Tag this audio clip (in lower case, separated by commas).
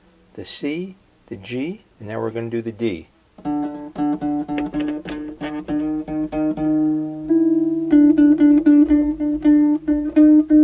harp, pizzicato